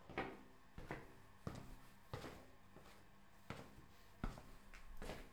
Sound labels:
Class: footsteps